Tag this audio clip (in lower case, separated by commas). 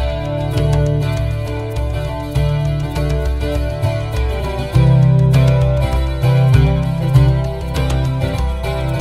music